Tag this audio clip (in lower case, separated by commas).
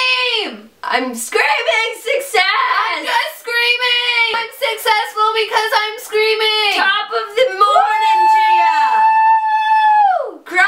speech, inside a small room